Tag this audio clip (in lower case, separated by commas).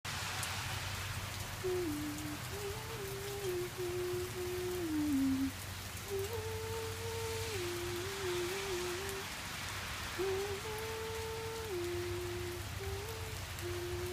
rain, water